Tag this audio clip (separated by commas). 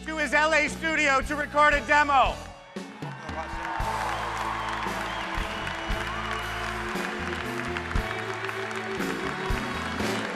Speech, Music